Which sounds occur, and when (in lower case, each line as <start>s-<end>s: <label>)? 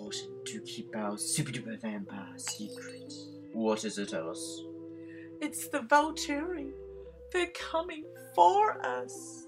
0.0s-0.3s: man speaking
0.0s-9.4s: conversation
0.0s-9.4s: music
0.4s-3.4s: man speaking
3.5s-4.6s: man speaking
5.0s-5.2s: breathing
5.4s-6.7s: female speech
7.0s-7.1s: breathing
7.3s-8.0s: female speech
8.4s-9.4s: female speech